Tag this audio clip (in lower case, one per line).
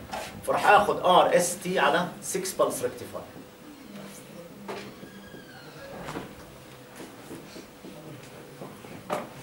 speech